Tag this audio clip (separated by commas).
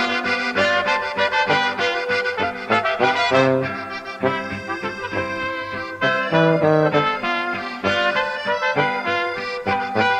Trumpet, Brass instrument, Trombone